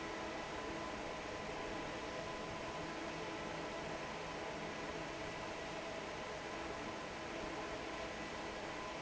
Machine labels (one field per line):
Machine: fan